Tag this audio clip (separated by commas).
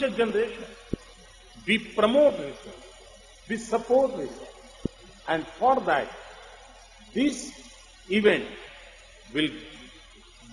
Speech, Narration, man speaking